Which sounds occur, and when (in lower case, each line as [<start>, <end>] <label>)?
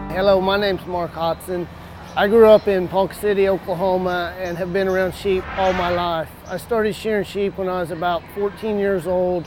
[0.00, 0.58] music
[0.00, 1.66] man speaking
[0.00, 9.45] wind
[2.00, 2.13] chirp
[2.06, 6.24] man speaking
[2.48, 2.66] chirp
[4.43, 4.59] chirp
[4.87, 5.07] chirp
[5.20, 6.13] sound effect
[6.42, 6.61] chirp
[6.46, 8.19] man speaking
[8.33, 9.41] man speaking